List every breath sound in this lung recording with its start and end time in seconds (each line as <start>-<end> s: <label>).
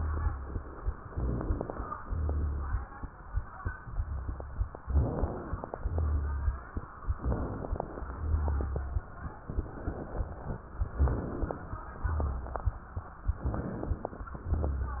1.08-1.96 s: inhalation
1.08-1.96 s: rhonchi
2.05-2.92 s: exhalation
2.05-2.92 s: rhonchi
4.84-5.71 s: inhalation
4.84-5.71 s: crackles
5.79-6.66 s: exhalation
5.79-6.66 s: rhonchi
7.17-8.05 s: inhalation
7.17-8.05 s: crackles
8.12-8.99 s: exhalation
8.12-8.99 s: rhonchi
10.93-11.77 s: inhalation
10.93-11.77 s: crackles
12.01-12.85 s: exhalation
12.01-12.85 s: rhonchi
13.47-14.31 s: inhalation
13.47-14.31 s: crackles
14.38-15.00 s: exhalation
14.38-15.00 s: rhonchi